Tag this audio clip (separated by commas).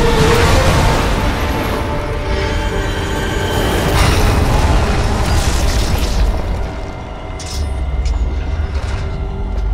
Music